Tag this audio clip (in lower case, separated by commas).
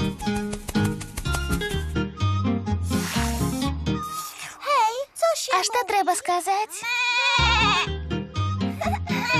music, goat, speech